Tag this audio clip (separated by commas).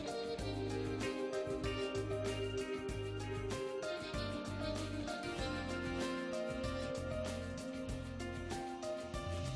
Music